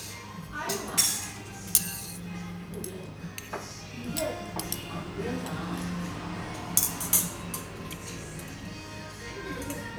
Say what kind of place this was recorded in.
restaurant